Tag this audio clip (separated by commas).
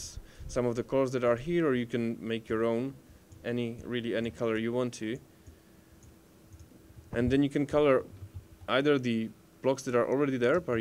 Clicking